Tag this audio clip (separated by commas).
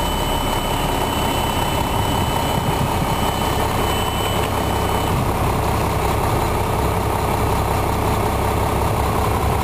Truck, Vehicle